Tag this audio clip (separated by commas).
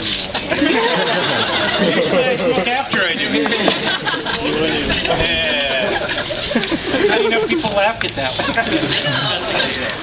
Laughter